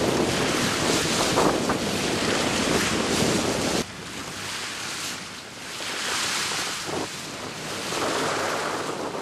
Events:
0.0s-3.8s: wind noise (microphone)
0.0s-9.2s: speedboat
0.0s-9.2s: water
0.2s-1.5s: splash
1.6s-1.7s: generic impact sounds
1.7s-2.8s: splash
4.2s-5.2s: splash
5.6s-6.8s: splash
6.8s-7.1s: wind noise (microphone)
7.6s-8.9s: splash
7.7s-9.2s: wind noise (microphone)

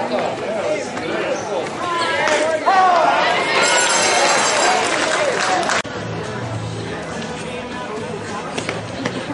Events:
0.0s-1.6s: man speaking
0.0s-5.8s: speech noise
0.0s-9.3s: cheering
0.1s-0.3s: generic impact sounds
0.5s-1.5s: tweet
0.8s-1.0s: generic impact sounds
1.5s-1.7s: generic impact sounds
3.5s-5.7s: applause
5.8s-9.3s: music
6.8s-9.3s: male singing
8.5s-8.7s: generic impact sounds
9.0s-9.2s: generic impact sounds

